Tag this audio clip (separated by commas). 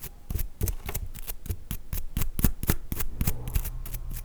home sounds